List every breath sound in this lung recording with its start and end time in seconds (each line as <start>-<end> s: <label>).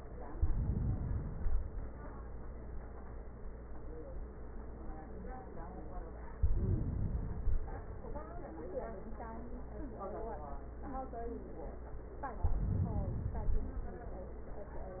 0.22-1.38 s: inhalation
1.39-2.36 s: exhalation
6.36-7.39 s: inhalation
7.40-8.36 s: exhalation
12.36-13.39 s: inhalation
13.39-14.43 s: exhalation